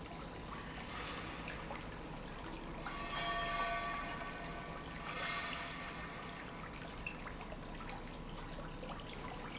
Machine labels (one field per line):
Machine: pump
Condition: normal